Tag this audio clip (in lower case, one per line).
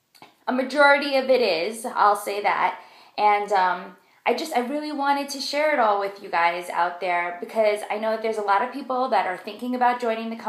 speech